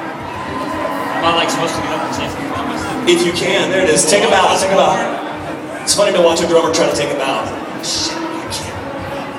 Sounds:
Speech, Chatter, Human group actions, Human voice

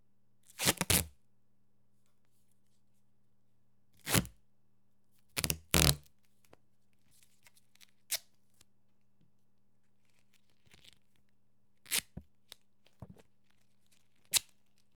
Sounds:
duct tape, Domestic sounds, Tearing

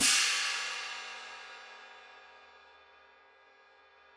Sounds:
Percussion, Cymbal, Music, Musical instrument, Hi-hat

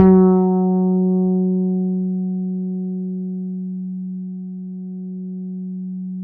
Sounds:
Guitar, Plucked string instrument, Bass guitar, Music, Musical instrument

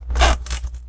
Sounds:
Squeak

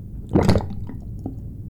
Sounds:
Domestic sounds, Sink (filling or washing)

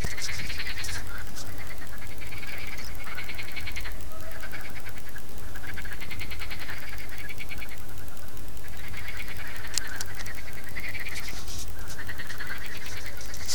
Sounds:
Frog, Wild animals, Animal

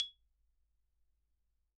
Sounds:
xylophone, Percussion, Mallet percussion, Music, Musical instrument

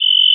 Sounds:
Cricket, Animal, Insect, Wild animals

